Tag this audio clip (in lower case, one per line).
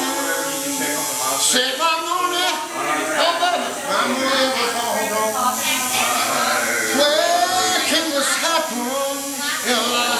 male singing
speech